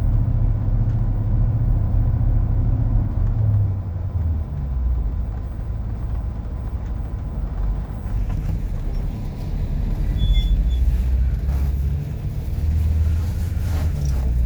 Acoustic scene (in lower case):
bus